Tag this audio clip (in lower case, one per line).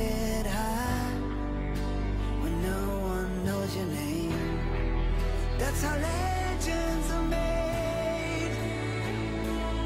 exciting music
music